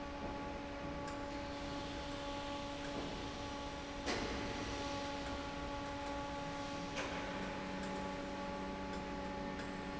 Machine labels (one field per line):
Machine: fan